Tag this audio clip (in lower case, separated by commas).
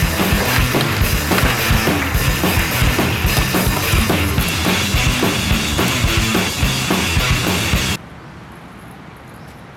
music, skateboard